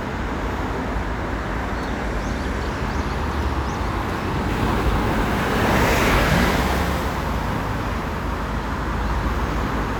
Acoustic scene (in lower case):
street